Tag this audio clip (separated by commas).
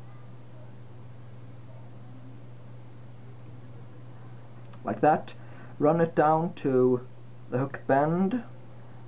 Speech